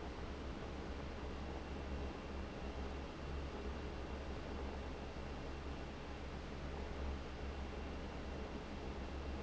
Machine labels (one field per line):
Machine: fan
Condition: abnormal